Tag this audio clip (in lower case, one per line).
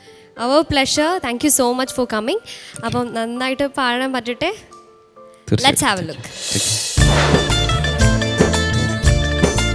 speech
music